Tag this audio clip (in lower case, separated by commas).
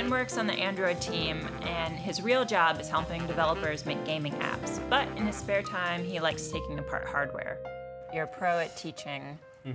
speech, music